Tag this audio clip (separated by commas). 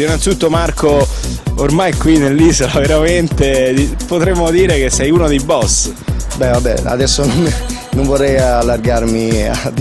Music, Speech